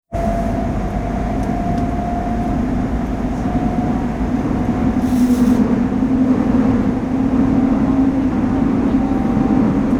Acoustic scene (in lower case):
subway train